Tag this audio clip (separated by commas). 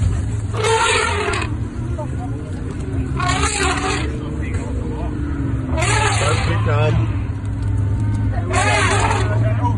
elephant trumpeting